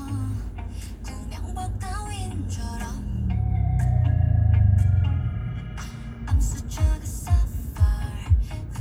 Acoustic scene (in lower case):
car